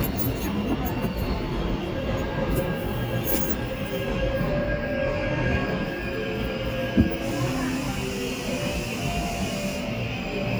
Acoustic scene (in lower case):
subway station